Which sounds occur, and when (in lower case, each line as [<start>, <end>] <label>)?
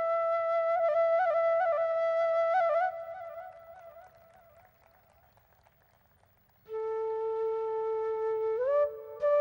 [0.00, 4.08] music
[0.00, 9.40] background noise
[3.47, 6.58] crowd
[3.48, 6.55] applause
[6.65, 9.40] music